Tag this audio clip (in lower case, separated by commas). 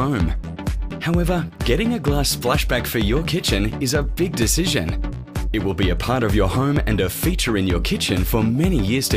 music, speech